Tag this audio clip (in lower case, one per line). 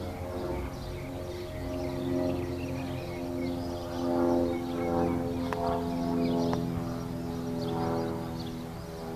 vehicle